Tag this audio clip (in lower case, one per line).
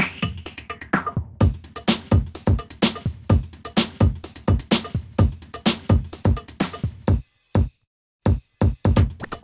drum machine
music